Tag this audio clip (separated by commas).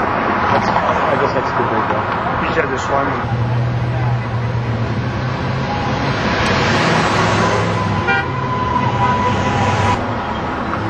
Speech, honking